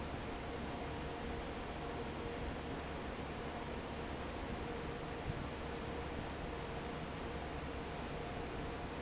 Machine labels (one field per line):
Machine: fan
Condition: normal